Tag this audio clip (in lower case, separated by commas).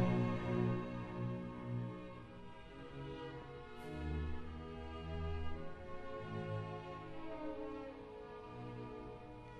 violin, musical instrument, music